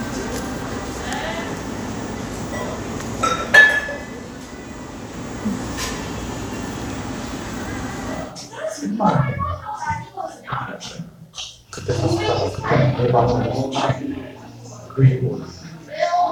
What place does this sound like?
crowded indoor space